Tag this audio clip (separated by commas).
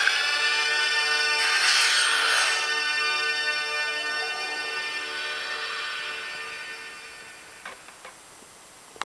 Music